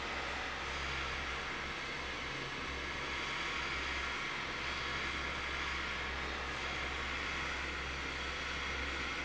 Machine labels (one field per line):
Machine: fan